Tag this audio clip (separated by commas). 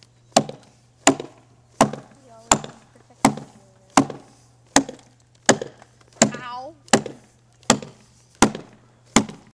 Speech